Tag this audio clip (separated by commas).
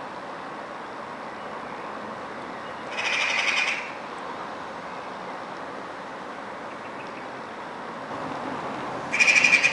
magpie calling